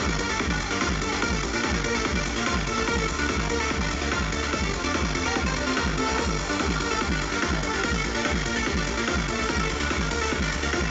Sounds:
Music, Disco

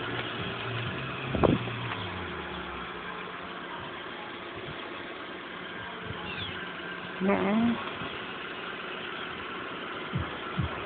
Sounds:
Speech

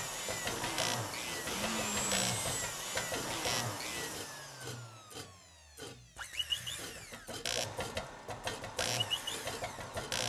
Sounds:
Power tool, Tools

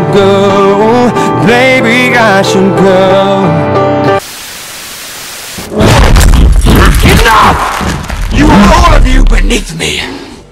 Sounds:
Music, Speech

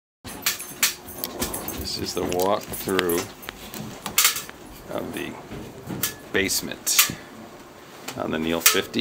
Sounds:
dishes, pots and pans, silverware

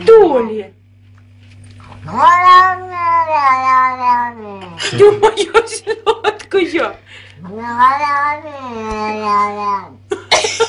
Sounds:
Speech

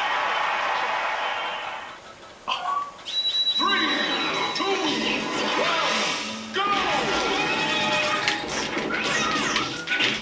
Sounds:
Music, Speech, Smash

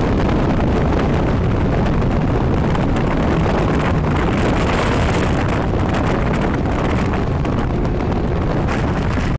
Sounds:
Boat, Motorboat, Vehicle

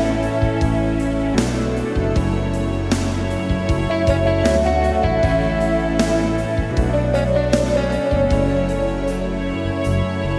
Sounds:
Musical instrument, Keyboard (musical), Music, Piano

